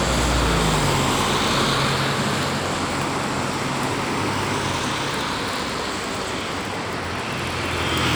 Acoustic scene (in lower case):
street